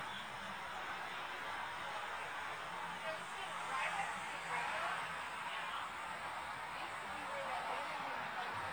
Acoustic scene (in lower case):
street